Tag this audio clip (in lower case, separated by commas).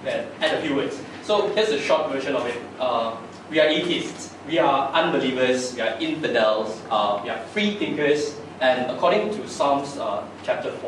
speech, narration, man speaking